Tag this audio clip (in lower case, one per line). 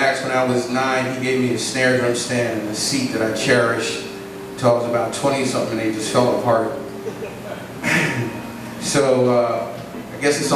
speech